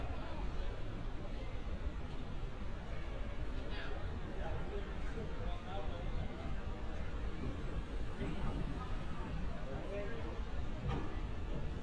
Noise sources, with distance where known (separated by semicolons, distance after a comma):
person or small group talking, near